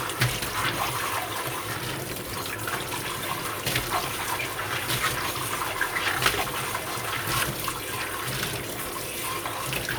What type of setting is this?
kitchen